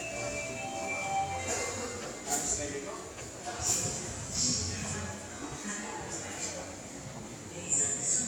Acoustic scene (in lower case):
subway station